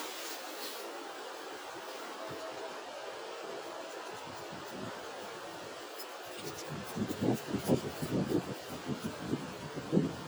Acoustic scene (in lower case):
residential area